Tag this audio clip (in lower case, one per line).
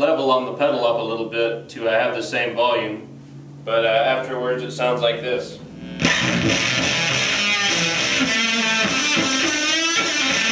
strum
music
guitar
electric guitar
bass guitar
musical instrument
speech